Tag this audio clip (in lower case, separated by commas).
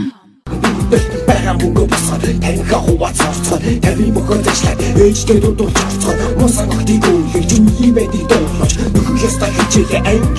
music